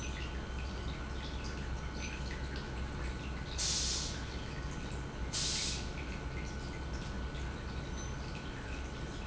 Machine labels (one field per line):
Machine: pump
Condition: normal